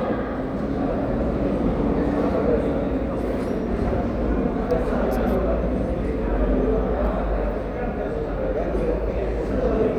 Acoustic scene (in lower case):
crowded indoor space